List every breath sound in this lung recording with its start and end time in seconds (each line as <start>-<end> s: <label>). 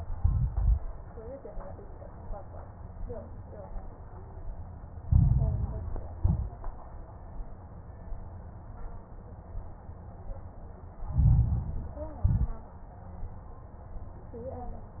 0.09-0.80 s: exhalation
0.09-0.80 s: crackles
4.98-6.13 s: inhalation
4.98-6.13 s: crackles
6.16-6.80 s: exhalation
6.16-6.80 s: crackles
11.00-12.22 s: inhalation
11.00-12.22 s: crackles
12.24-12.82 s: exhalation
12.24-12.82 s: crackles